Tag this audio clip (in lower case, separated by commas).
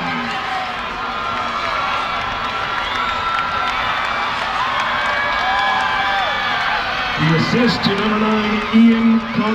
speech